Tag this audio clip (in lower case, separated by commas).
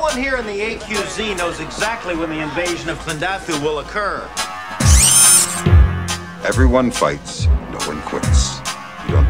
speech, music